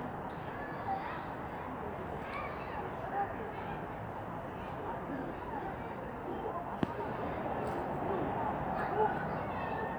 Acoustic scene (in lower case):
residential area